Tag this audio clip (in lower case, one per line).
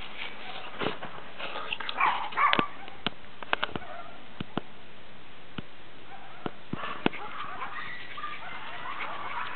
bark
pets
animal
dog